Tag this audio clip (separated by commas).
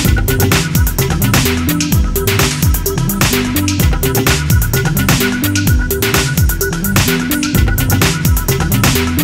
Music, inside a small room